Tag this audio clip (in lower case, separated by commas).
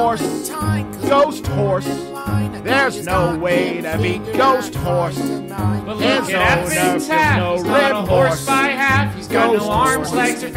music